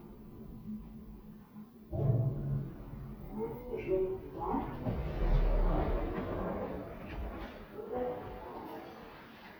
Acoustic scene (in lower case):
elevator